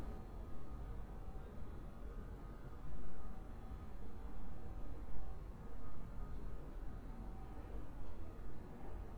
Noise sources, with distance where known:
background noise

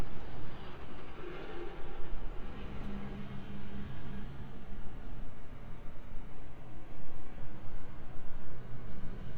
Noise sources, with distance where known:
engine of unclear size, far
non-machinery impact

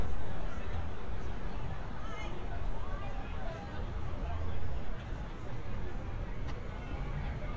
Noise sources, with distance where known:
person or small group talking, near
person or small group shouting

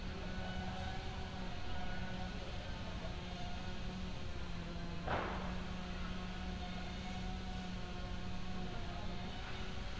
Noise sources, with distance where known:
small or medium rotating saw

